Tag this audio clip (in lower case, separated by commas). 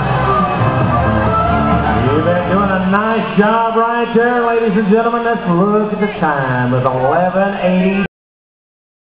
speech, music